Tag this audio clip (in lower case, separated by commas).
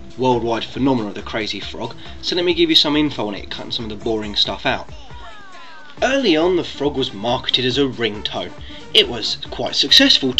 music, speech